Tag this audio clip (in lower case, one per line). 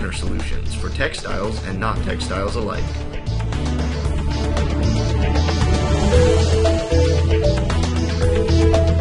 speech
music